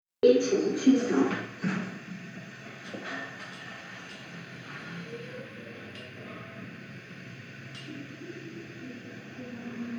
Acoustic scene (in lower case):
elevator